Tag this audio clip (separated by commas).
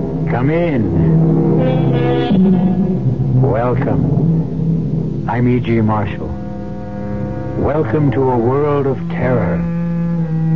Speech, Music